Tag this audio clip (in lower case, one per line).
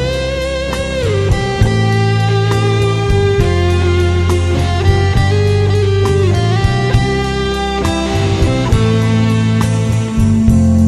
music